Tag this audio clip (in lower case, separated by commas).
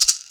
rattle (instrument), musical instrument, music, percussion